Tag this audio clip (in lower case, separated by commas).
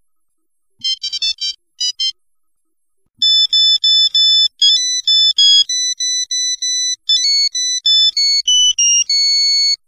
ringtone